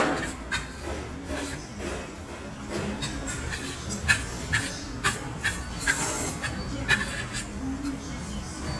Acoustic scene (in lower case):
restaurant